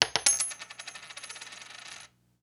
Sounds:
coin (dropping)
domestic sounds

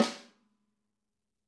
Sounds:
musical instrument
drum
percussion
snare drum
music

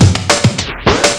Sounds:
scratching (performance technique)
music
musical instrument

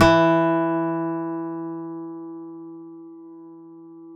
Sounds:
music
plucked string instrument
guitar
acoustic guitar
musical instrument

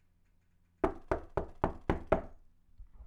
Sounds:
door
knock
home sounds

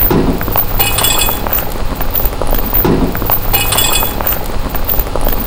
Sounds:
mechanisms

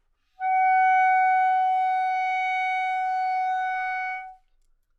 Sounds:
music
wind instrument
musical instrument

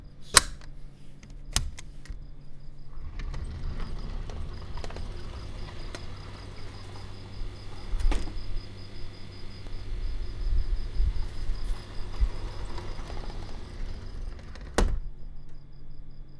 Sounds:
sliding door
door
domestic sounds

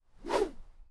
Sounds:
whoosh

